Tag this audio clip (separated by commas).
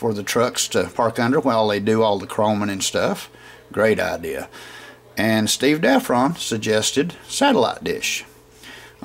Speech